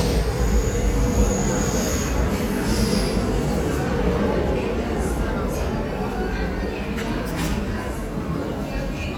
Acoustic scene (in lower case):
subway station